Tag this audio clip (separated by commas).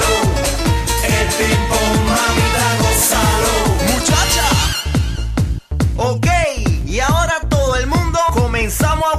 Music